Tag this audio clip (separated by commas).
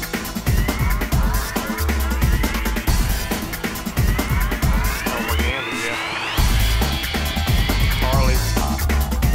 Speech, Music